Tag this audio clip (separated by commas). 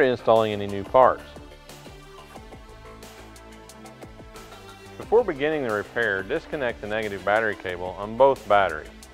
Speech, Music